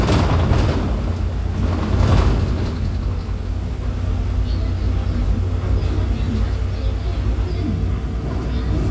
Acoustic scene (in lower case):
bus